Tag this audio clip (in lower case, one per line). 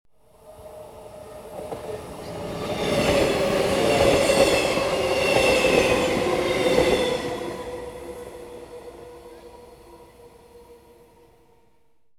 vehicle
train
rail transport